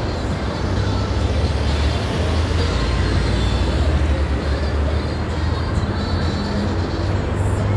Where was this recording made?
on a street